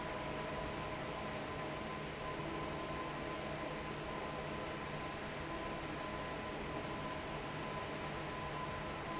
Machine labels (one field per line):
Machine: fan